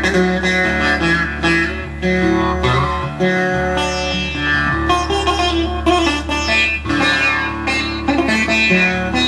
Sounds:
Music

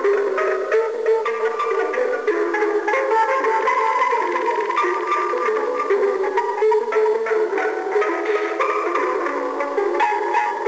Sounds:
Music

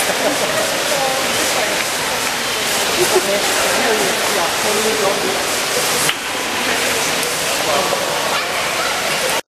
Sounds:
Speech

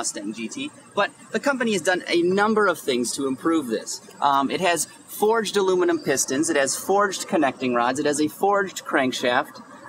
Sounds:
Speech

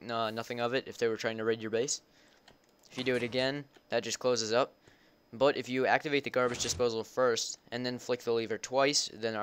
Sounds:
Speech

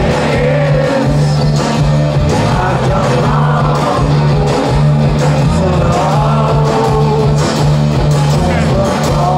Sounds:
Singing, Music, Rock music, Independent music

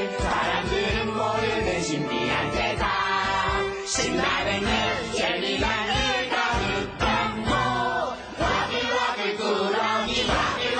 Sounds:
Music

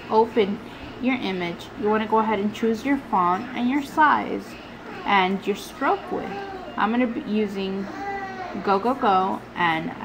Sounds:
Speech

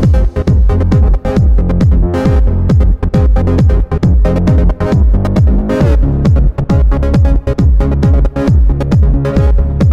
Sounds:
Music

